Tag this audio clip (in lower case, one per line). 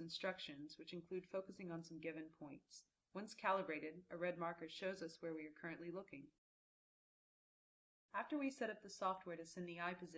speech